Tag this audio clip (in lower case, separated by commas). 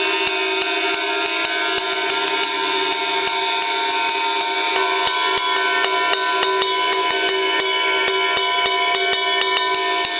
music